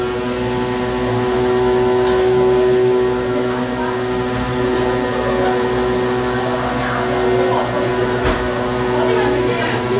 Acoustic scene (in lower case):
cafe